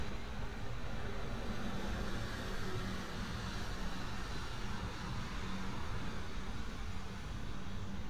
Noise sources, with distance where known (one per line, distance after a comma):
engine of unclear size